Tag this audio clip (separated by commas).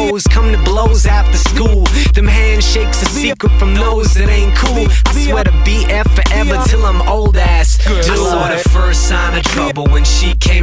Pop music, Dance music, Music